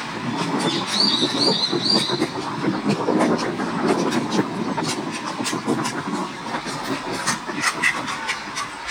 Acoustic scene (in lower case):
park